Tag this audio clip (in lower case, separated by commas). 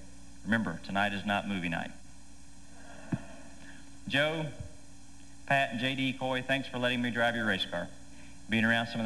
man speaking, speech